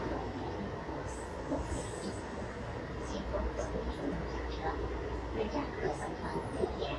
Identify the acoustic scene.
subway train